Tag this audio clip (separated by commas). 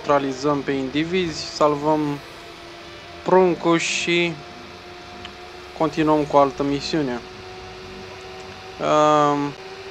Speech